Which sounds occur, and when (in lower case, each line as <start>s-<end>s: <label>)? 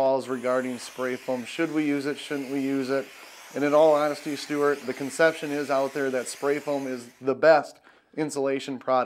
0.0s-3.0s: man speaking
0.0s-7.3s: spray
3.0s-3.5s: breathing
3.5s-7.1s: man speaking
7.2s-7.7s: man speaking
7.8s-8.1s: breathing
8.1s-9.0s: man speaking